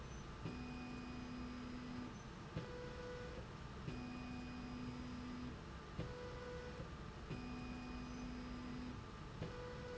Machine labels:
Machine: slide rail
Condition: normal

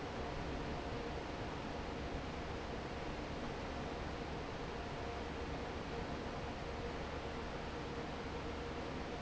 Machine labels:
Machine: fan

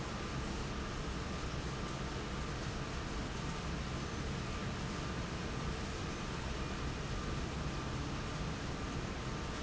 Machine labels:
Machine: fan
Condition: abnormal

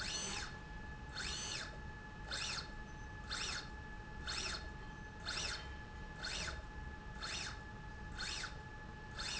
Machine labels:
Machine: slide rail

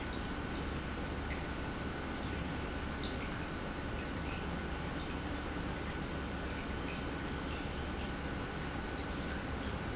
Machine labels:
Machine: pump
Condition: normal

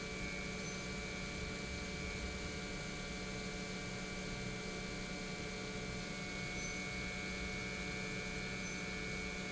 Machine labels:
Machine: pump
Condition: normal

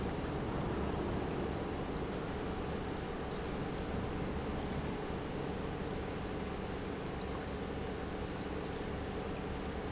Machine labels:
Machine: pump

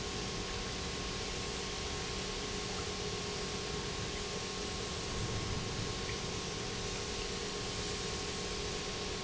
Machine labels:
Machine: pump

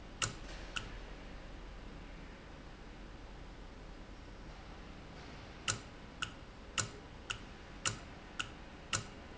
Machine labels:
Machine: valve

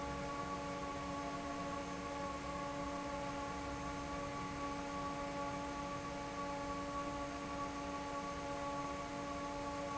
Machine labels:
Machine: fan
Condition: normal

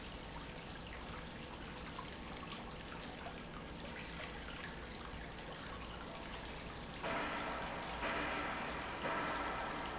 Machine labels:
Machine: pump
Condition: normal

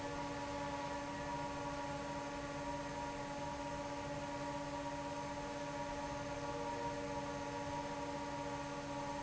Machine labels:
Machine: fan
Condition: normal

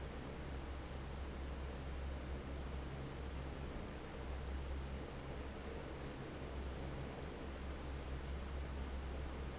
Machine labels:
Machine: fan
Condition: normal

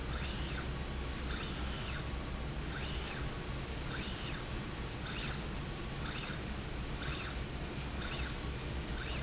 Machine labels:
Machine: slide rail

